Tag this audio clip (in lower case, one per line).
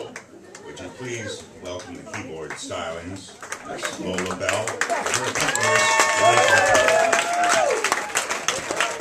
speech